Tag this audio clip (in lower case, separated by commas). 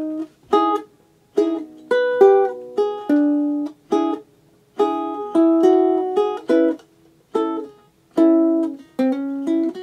ukulele, music, musical instrument, acoustic guitar, plucked string instrument, guitar